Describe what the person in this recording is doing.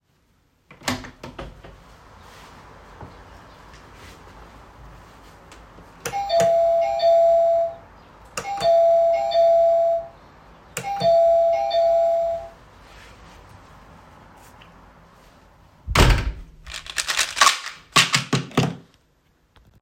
I open the door ring the doorbell and take a chewinggum out of the container